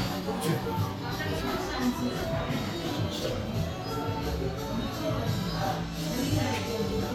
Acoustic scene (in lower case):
crowded indoor space